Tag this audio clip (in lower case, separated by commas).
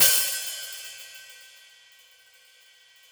hi-hat, percussion, musical instrument, music, cymbal